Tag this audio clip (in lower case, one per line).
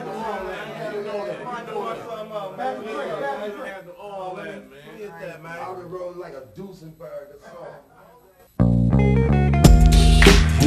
music
speech